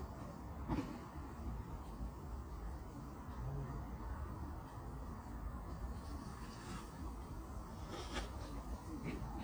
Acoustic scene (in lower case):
park